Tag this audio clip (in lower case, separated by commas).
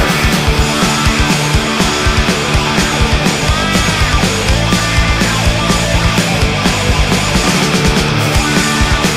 music